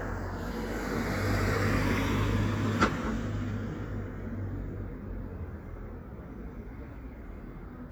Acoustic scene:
residential area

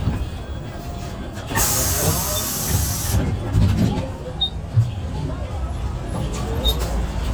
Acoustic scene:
bus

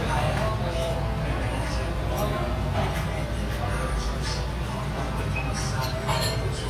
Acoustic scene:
restaurant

